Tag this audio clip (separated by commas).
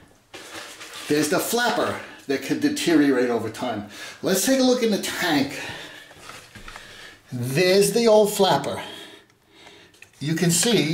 Speech